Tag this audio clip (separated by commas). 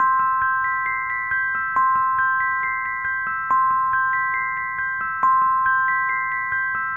Keyboard (musical), Piano, Musical instrument, Music